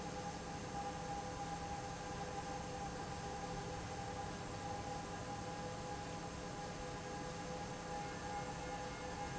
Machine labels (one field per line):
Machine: fan